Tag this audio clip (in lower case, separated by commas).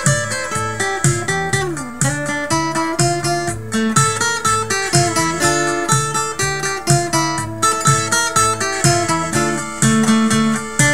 music, sad music